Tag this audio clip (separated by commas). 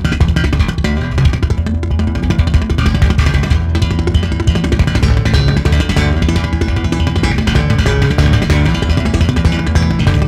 Music